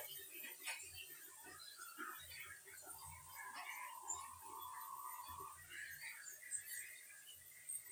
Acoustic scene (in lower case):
restroom